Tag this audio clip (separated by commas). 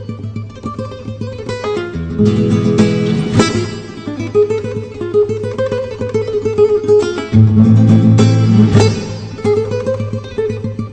Plucked string instrument, Guitar, Strum, Acoustic guitar, Musical instrument, Music